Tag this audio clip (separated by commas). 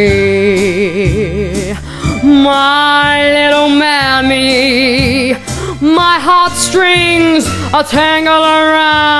Female singing, Music